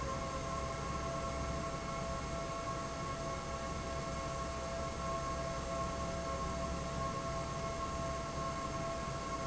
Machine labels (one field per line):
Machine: fan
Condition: normal